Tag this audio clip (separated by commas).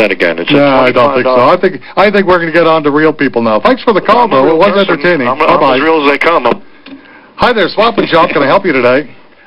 Speech